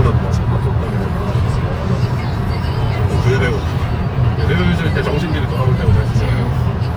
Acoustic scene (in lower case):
car